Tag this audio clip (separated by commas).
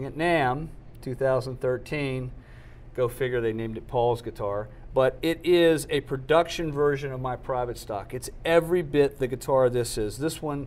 Speech